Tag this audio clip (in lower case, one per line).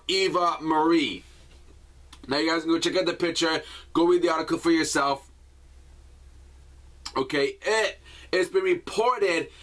speech